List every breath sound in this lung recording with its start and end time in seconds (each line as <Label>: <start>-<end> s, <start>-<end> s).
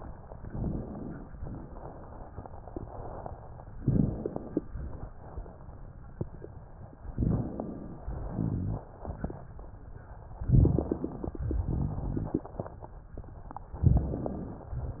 Inhalation: 0.31-1.38 s, 3.69-4.64 s, 7.03-8.15 s, 10.38-11.39 s, 13.72-14.71 s
Exhalation: 1.39-2.50 s, 4.63-5.80 s, 8.16-9.67 s, 11.38-12.87 s
Crackles: 3.67-4.62 s, 10.38-11.37 s, 11.38-12.87 s